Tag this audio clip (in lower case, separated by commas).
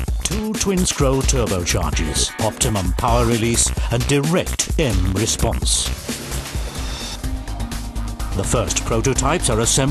speech, music